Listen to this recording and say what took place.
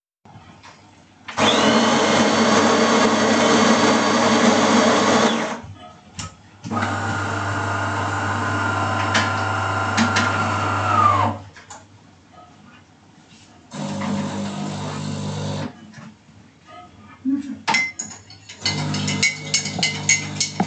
The coffee_machine ist started. While a second cup of coffee is prepared the first on is stirred.